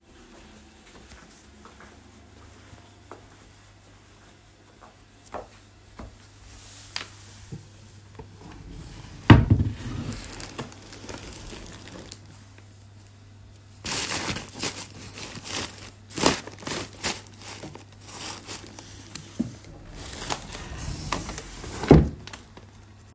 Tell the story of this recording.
I walked, stopped, squatted down and opened the drawer under my bed. I searched for a plastic bad inside the drawer and then closed the drawer.